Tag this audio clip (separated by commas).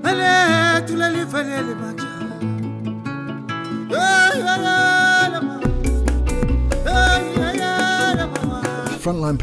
Speech, Music